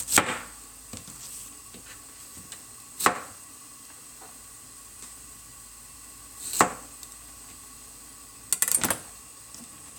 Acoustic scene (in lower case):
kitchen